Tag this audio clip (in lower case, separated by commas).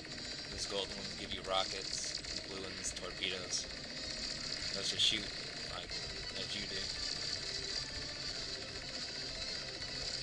speech, music